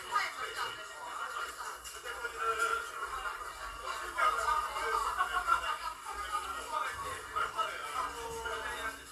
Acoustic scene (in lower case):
crowded indoor space